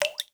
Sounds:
Drip, Liquid

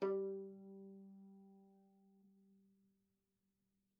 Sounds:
Musical instrument, Music, Bowed string instrument

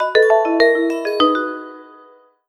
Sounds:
Ringtone, Alarm, Telephone

